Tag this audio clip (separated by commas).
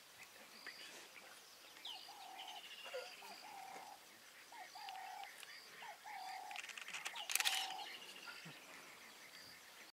Wild animals, Animal